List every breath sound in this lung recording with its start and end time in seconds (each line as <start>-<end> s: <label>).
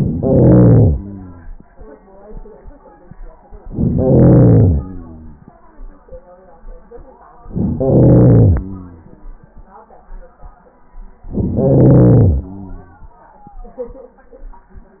0.00-0.96 s: inhalation
0.94-1.76 s: exhalation
3.65-4.82 s: inhalation
4.78-5.68 s: exhalation
7.51-8.61 s: inhalation
8.60-9.21 s: exhalation
11.25-12.36 s: inhalation
12.34-13.45 s: exhalation